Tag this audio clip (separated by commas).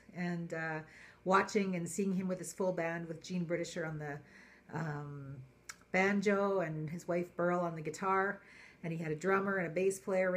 Speech